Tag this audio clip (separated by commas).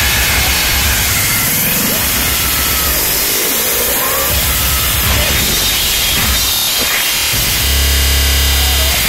Music, Vibration